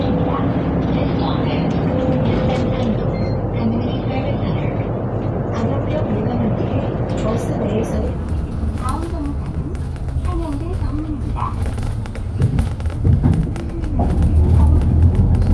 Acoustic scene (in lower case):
bus